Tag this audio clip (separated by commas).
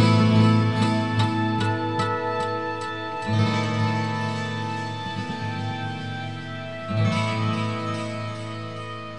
Music